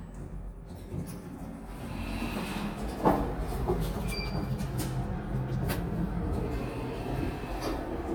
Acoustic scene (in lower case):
elevator